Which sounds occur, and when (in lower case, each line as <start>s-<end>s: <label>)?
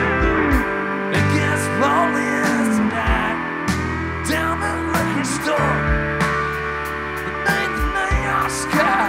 0.0s-9.0s: music
1.0s-3.3s: male singing
4.2s-5.6s: male singing
7.4s-9.0s: male singing